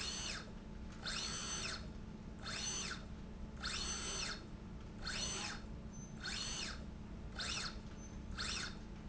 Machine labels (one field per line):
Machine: slide rail